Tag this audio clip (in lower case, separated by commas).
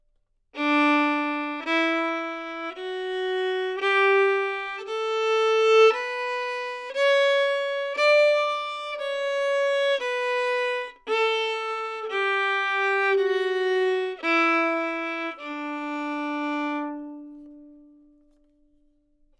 music, musical instrument, bowed string instrument